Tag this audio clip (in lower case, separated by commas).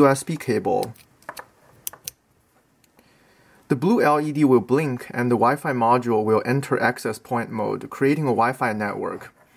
speech, inside a small room